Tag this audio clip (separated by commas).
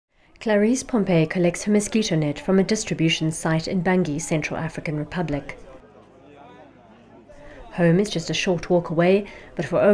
Speech